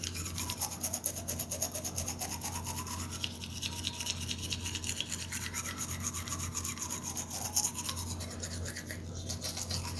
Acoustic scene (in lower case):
restroom